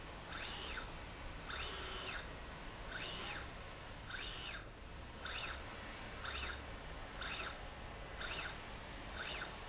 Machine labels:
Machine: slide rail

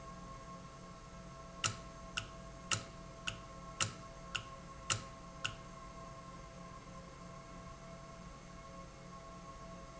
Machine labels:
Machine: valve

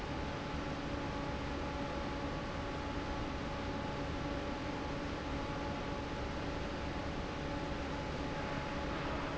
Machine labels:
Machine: fan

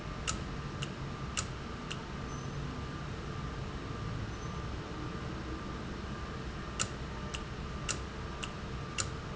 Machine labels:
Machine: valve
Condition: normal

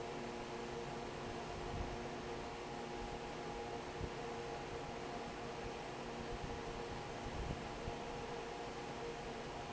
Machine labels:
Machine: fan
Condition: normal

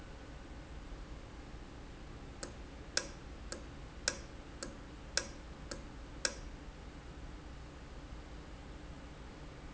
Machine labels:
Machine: valve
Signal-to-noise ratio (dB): 6 dB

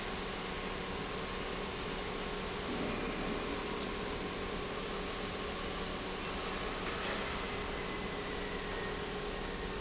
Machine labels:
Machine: pump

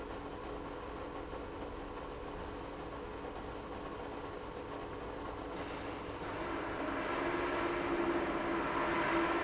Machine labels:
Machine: pump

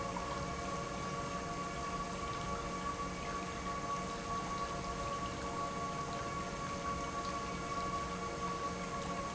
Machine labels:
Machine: pump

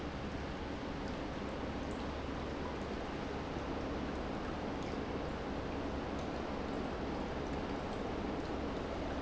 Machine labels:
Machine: pump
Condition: normal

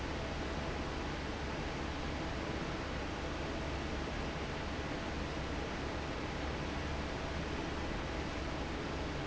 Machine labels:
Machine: fan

